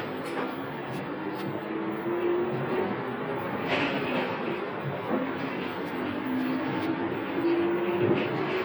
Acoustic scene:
bus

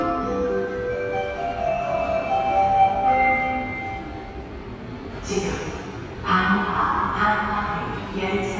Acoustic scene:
subway station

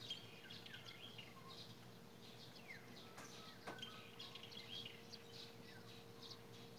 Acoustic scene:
park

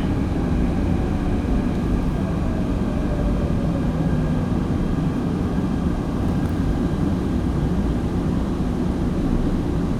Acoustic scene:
subway train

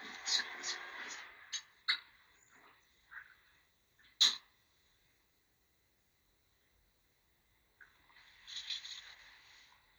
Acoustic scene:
elevator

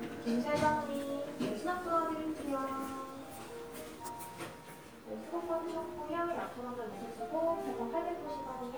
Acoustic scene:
crowded indoor space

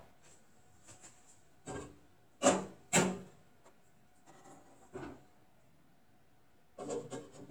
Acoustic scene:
kitchen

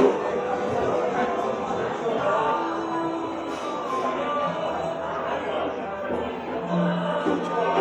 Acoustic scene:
cafe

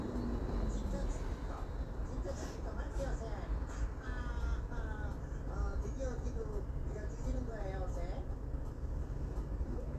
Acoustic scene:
bus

